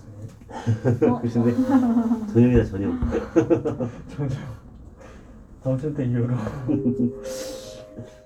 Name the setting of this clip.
elevator